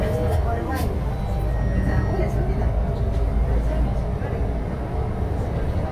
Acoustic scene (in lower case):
bus